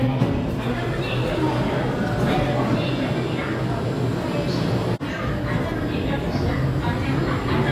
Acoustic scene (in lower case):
subway station